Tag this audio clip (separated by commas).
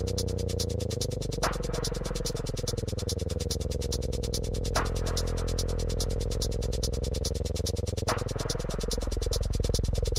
Music